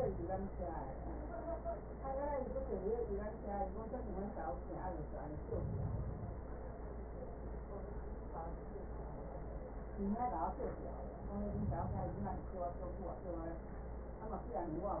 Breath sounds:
5.27-6.77 s: inhalation
11.14-12.79 s: inhalation

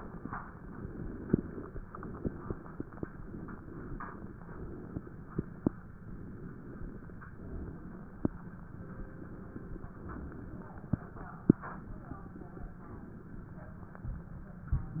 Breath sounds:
0.00-0.30 s: inhalation
0.38-1.83 s: inhalation
1.89-3.13 s: exhalation
3.14-4.38 s: inhalation
4.44-5.79 s: exhalation
5.99-7.28 s: inhalation
7.24-8.52 s: exhalation
8.65-9.93 s: inhalation
9.97-11.40 s: exhalation
11.42-12.79 s: inhalation
12.85-13.99 s: exhalation

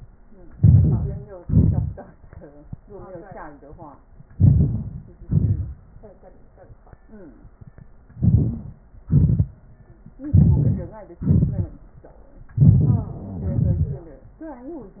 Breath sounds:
0.53-0.97 s: inhalation
1.42-1.91 s: exhalation
4.36-4.78 s: inhalation
5.28-5.76 s: exhalation
8.19-8.65 s: inhalation
9.08-9.53 s: exhalation
10.31-10.89 s: inhalation
11.20-11.73 s: exhalation
12.65-13.10 s: inhalation
13.54-14.09 s: exhalation

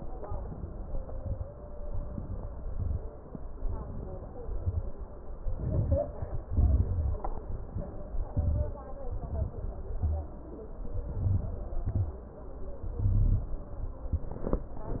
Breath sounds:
0.21-0.87 s: inhalation
0.89-1.44 s: exhalation
1.84-2.50 s: inhalation
2.53-3.10 s: exhalation
3.57-4.41 s: inhalation
4.43-4.94 s: exhalation
5.43-6.17 s: inhalation
6.50-7.24 s: exhalation
8.13-8.81 s: inhalation
8.89-9.57 s: exhalation
10.68-11.74 s: inhalation
11.76-12.46 s: exhalation
12.90-13.76 s: inhalation

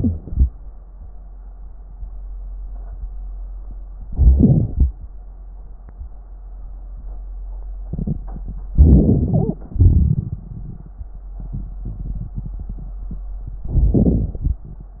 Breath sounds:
0.00-0.45 s: inhalation
4.10-4.92 s: inhalation
8.74-9.59 s: inhalation
9.68-10.98 s: exhalation
13.65-14.67 s: inhalation

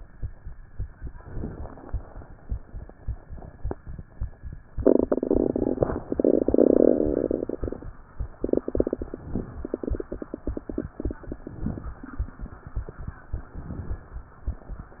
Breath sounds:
1.09-2.20 s: inhalation
1.09-2.20 s: crackles
11.20-11.97 s: inhalation
11.20-12.01 s: crackles
13.32-14.13 s: crackles
13.36-14.13 s: inhalation

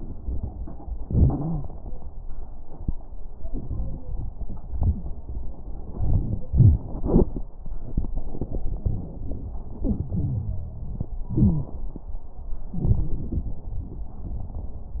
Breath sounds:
0.99-1.62 s: wheeze
9.82-11.13 s: wheeze
11.31-11.78 s: wheeze

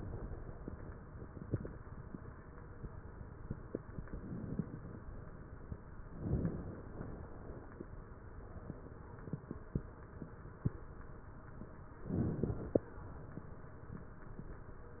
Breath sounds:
4.08-4.99 s: inhalation
4.08-4.99 s: crackles
6.17-6.96 s: inhalation
6.17-6.96 s: crackles
6.96-7.76 s: exhalation
12.11-12.90 s: inhalation
12.11-12.90 s: crackles

